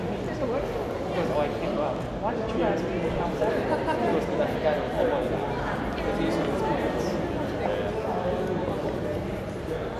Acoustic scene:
crowded indoor space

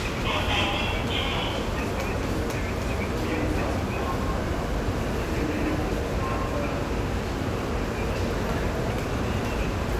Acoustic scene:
subway station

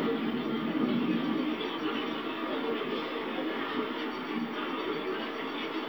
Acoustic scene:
park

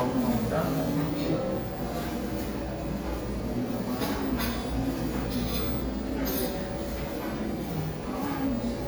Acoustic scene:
cafe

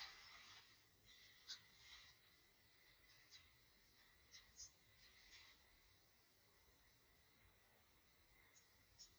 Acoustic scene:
elevator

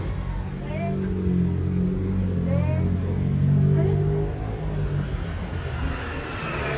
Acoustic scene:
residential area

